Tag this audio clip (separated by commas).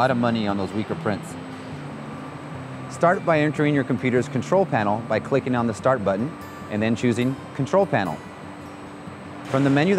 Music, Speech